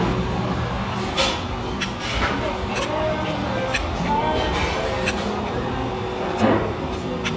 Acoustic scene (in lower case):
restaurant